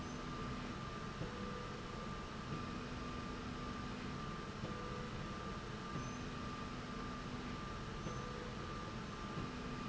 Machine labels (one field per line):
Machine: slide rail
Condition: normal